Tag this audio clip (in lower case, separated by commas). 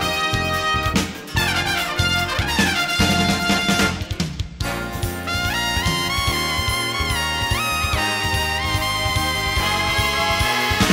brass instrument, trumpet